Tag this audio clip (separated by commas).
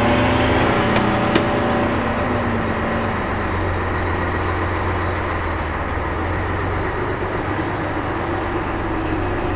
Truck, Vehicle